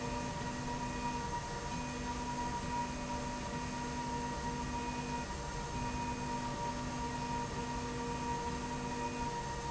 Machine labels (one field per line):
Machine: slide rail